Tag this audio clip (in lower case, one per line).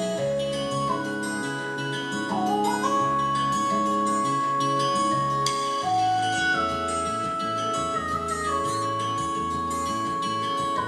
music